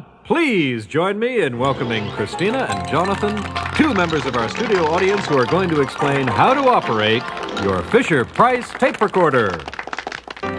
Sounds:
Speech

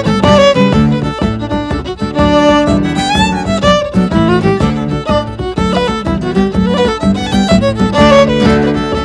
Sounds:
Music

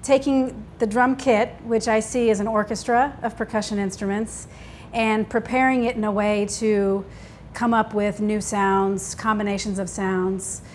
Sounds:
Speech

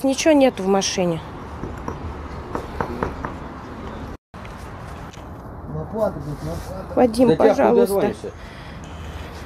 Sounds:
Speech

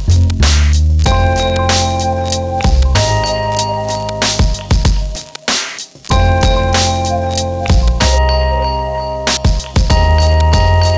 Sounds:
Music

